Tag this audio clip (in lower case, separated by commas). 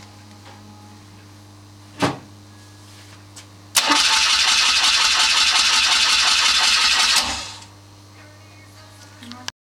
engine starting, engine, idling, medium engine (mid frequency)